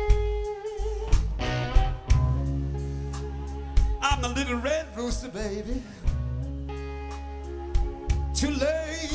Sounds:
Music

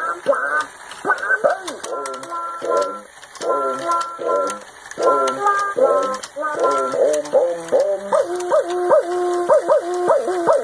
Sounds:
Tick-tock, Music

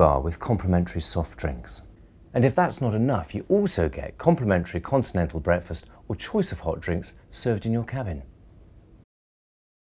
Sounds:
Speech

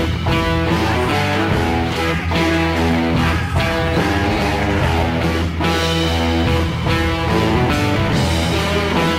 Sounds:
Guitar, Strum, Plucked string instrument, Musical instrument, Music, Electric guitar

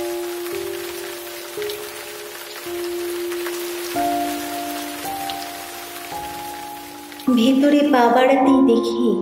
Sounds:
raining

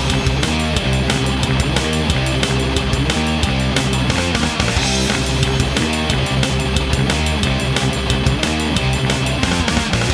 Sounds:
Music

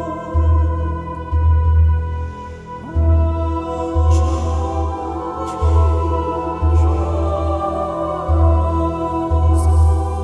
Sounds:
Music, Mantra

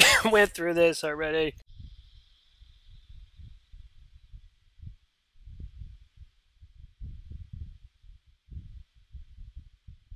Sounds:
Speech

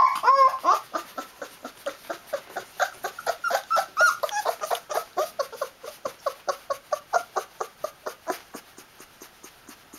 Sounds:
Dog, Animal, Domestic animals, canids

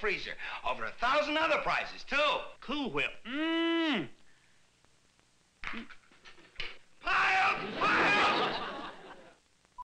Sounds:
Speech

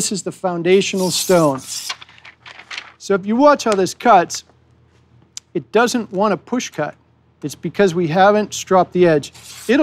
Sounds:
Speech

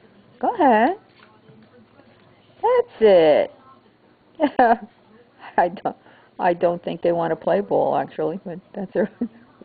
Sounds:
Speech

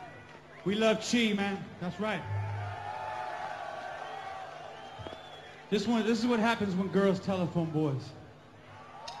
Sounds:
Speech, Music

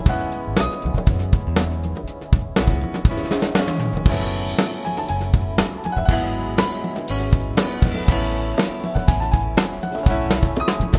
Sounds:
Music, Bass drum, Drum kit, Independent music, Drum, Musical instrument, playing drum kit, New-age music

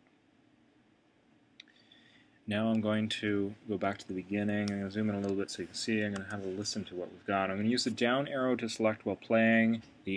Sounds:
Speech

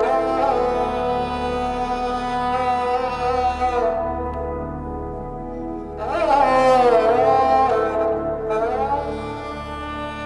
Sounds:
Bowed string instrument

